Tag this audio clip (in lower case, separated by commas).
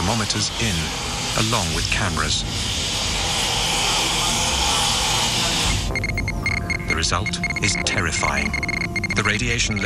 speech, music